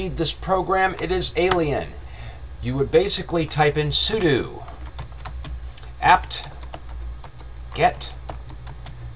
A man speaking over typing on a computer keyboard